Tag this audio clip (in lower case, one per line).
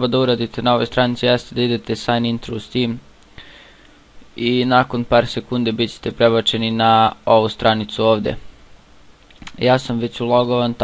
speech